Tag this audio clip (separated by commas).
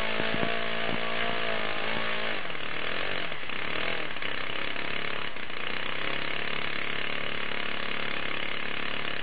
Engine